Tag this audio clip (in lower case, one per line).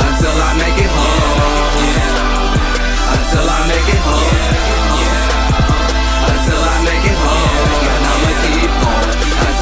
music